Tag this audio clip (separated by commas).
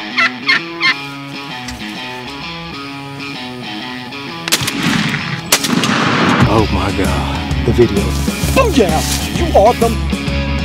Animal, Music, Speech